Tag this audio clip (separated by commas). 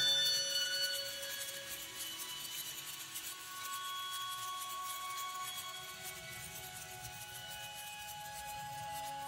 Music